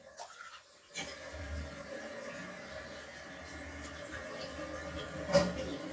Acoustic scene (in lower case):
restroom